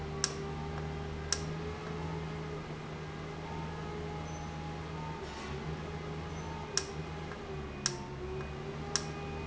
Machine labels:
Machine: valve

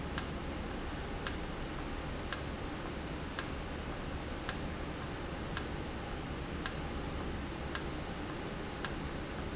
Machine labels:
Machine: valve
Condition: normal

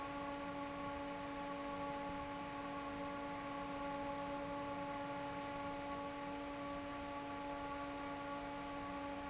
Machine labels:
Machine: fan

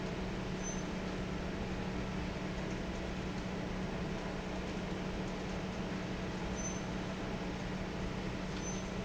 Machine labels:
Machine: fan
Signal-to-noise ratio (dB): -6 dB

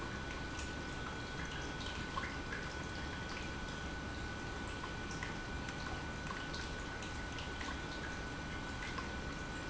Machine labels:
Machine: pump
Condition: normal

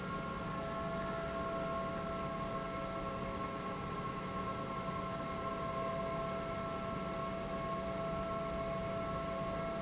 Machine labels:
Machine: pump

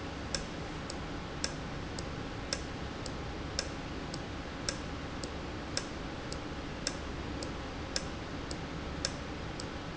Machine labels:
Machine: valve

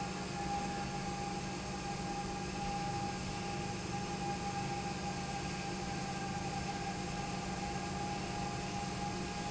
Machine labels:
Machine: pump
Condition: normal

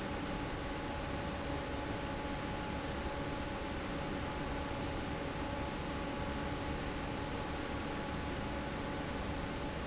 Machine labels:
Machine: fan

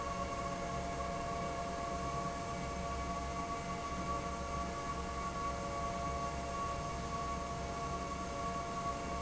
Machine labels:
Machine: fan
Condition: normal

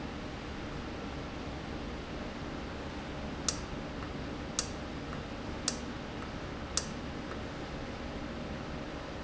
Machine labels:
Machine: valve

